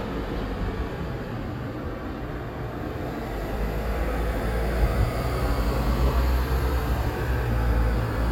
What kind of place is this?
street